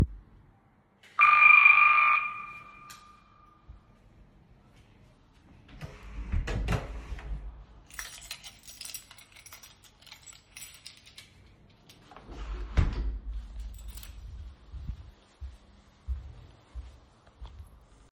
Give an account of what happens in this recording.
The doorbell rang, I walked to it, then I push the door handle, take out my keys. Then I opened the door and walked back.